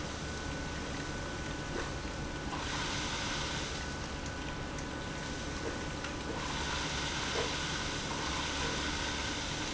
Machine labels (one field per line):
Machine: pump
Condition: abnormal